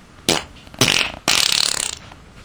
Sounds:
fart

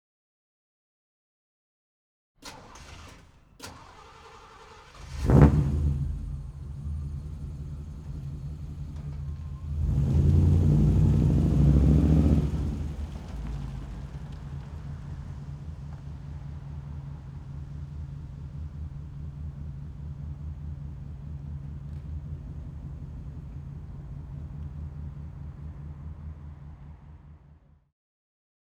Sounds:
vehicle
engine
revving
motor vehicle (road)
engine starting

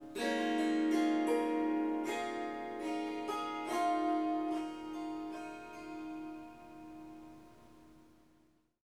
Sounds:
music
musical instrument
harp

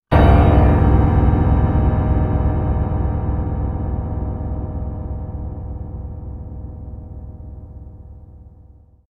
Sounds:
keyboard (musical)
piano
musical instrument
music

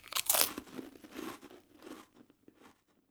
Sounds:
chewing

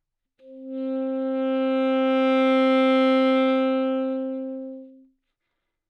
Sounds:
wind instrument
musical instrument
music

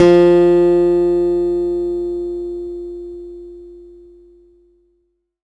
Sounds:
plucked string instrument
music
musical instrument
guitar
acoustic guitar

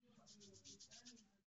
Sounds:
hands

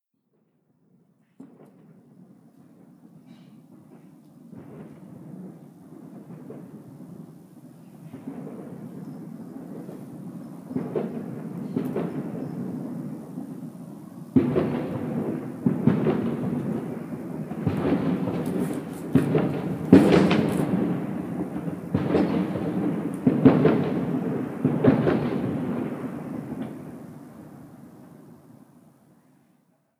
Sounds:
fireworks
explosion

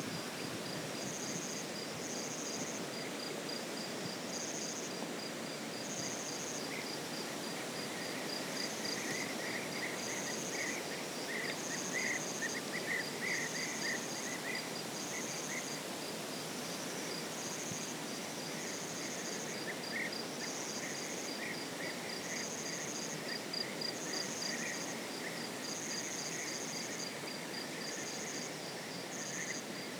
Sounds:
insect
animal
wild animals

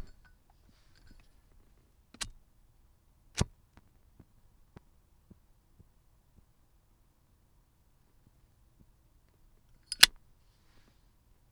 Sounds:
fire

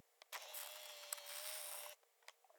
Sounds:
camera
mechanisms

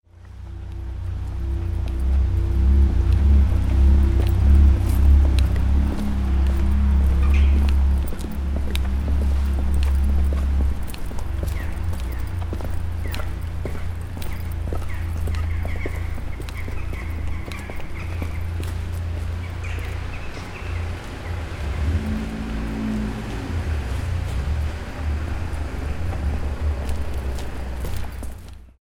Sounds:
vehicle
motor vehicle (road)
car

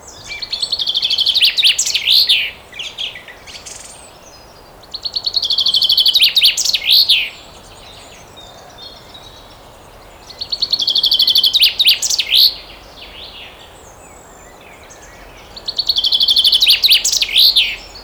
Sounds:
wild animals
animal
bird

